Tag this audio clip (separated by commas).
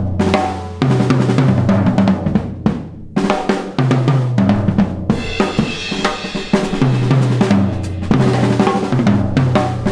Drum, Snare drum, Rimshot, Percussion, Drum kit, Bass drum, playing drum kit